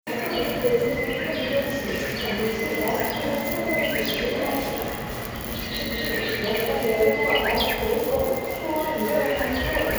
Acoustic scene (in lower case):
subway station